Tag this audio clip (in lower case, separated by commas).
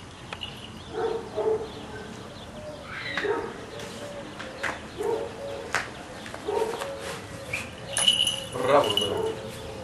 bird, speech, animal